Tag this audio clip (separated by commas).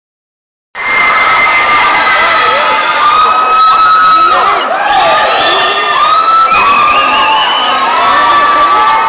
inside a public space, Speech